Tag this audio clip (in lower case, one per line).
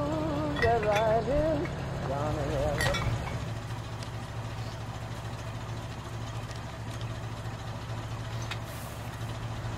music